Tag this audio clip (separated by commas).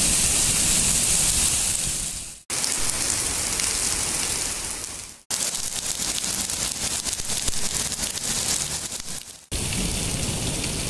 hail